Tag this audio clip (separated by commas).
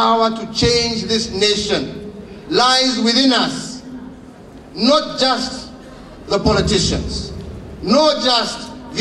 man speaking, Speech